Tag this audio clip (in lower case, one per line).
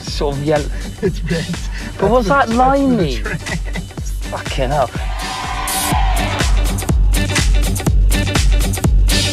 music
speech